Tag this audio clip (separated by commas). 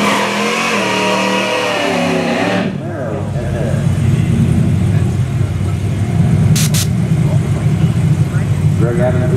Speech